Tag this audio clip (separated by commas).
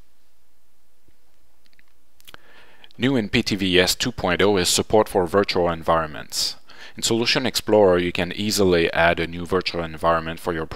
Speech